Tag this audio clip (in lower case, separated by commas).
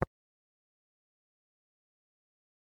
tap